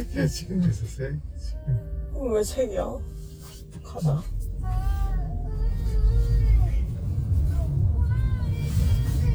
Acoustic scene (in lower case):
car